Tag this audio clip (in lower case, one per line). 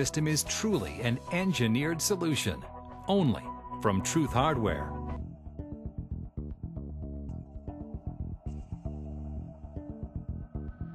music
speech